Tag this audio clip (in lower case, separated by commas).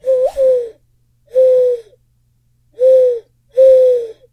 animal, bird, wild animals, bird song